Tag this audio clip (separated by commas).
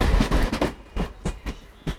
Train, Rail transport, Vehicle